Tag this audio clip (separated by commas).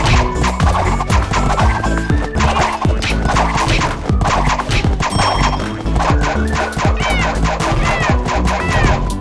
Music